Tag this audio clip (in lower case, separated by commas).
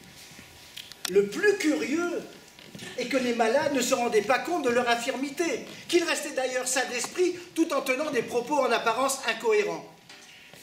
speech